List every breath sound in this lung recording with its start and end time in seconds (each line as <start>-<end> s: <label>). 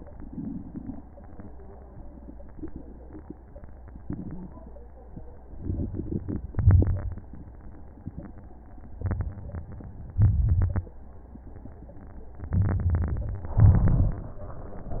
5.58-6.50 s: inhalation
6.53-7.45 s: exhalation
6.53-7.45 s: crackles
8.99-10.16 s: inhalation
10.14-10.95 s: exhalation
10.17-10.94 s: crackles
12.51-13.55 s: inhalation
13.58-15.00 s: exhalation
13.60-15.00 s: crackles